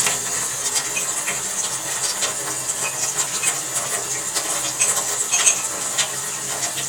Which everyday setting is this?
kitchen